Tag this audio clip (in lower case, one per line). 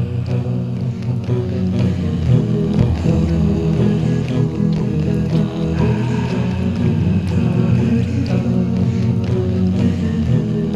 music